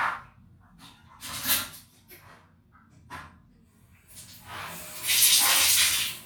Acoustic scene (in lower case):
restroom